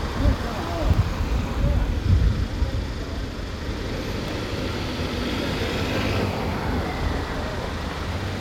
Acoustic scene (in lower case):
residential area